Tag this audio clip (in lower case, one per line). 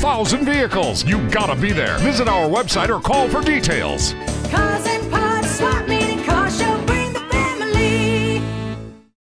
music
speech